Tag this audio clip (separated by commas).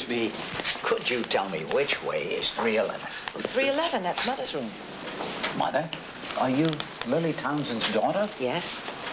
Speech